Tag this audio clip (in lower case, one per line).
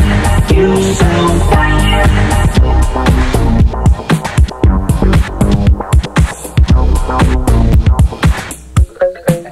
music
sampler